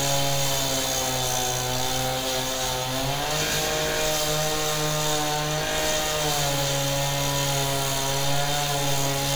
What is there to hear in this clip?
unidentified powered saw